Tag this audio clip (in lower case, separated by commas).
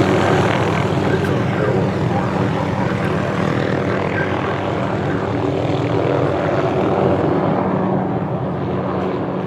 speech